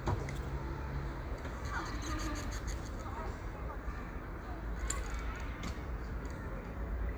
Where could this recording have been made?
in a park